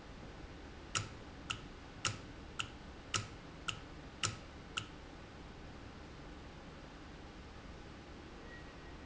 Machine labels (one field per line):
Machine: valve